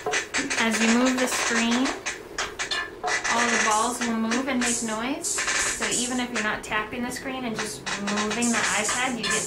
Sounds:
speech

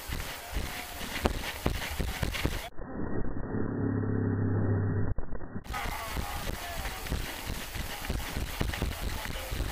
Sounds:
run
people running

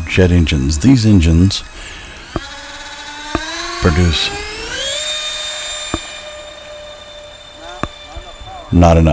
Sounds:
airplane
speech

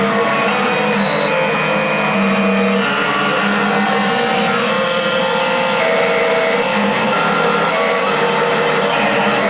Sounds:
sampler
music

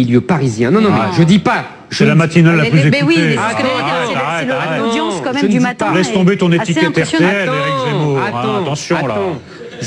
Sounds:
speech

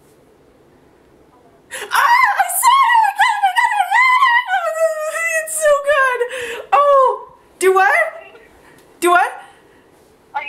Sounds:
speech
inside a small room

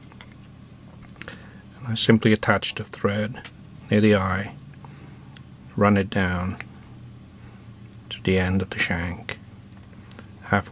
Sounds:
speech

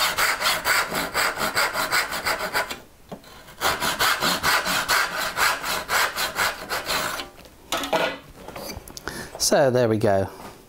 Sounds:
wood
rub
sawing

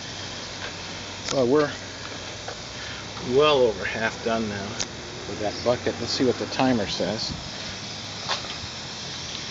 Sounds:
speech

